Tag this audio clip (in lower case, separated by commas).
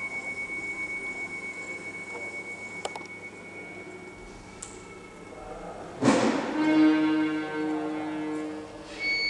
music, speech